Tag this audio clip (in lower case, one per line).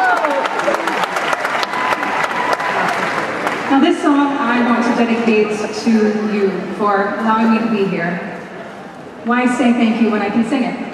speech